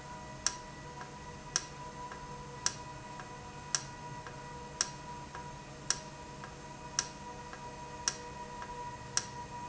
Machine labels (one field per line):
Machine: valve